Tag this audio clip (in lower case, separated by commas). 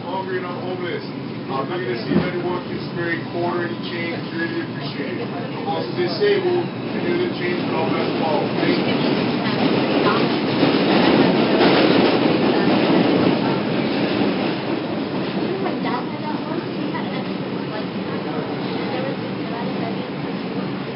rail transport, metro, vehicle